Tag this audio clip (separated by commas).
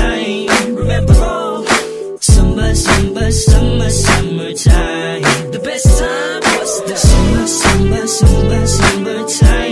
Music